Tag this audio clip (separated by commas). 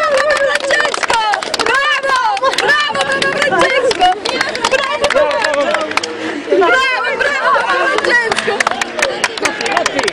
Speech